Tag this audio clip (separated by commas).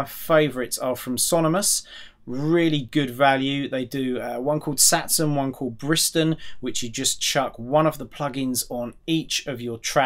Speech